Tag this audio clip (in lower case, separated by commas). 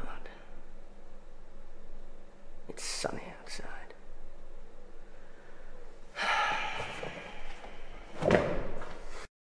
speech